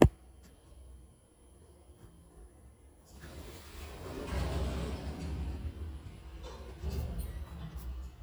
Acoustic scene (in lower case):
elevator